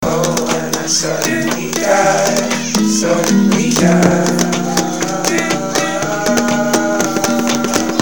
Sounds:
human voice, music, acoustic guitar, guitar, musical instrument, plucked string instrument

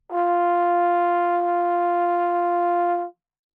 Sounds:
brass instrument, music, musical instrument

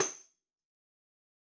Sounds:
music, percussion, musical instrument, tambourine

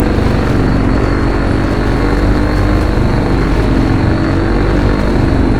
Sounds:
vehicle, engine, boat

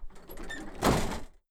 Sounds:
bus, vehicle, motor vehicle (road)

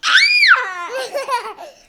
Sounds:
screaming, human voice

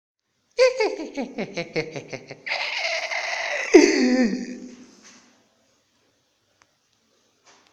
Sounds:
human voice, laughter

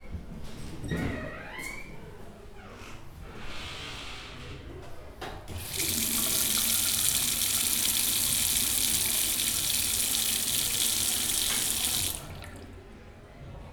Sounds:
sink (filling or washing), home sounds

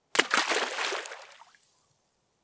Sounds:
liquid, splash

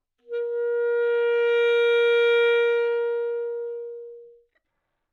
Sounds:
music, musical instrument, wind instrument

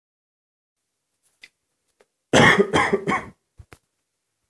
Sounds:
respiratory sounds, cough

